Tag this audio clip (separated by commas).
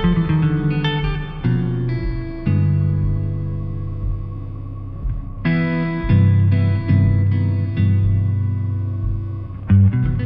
Plucked string instrument, Strum, Musical instrument, Music, Acoustic guitar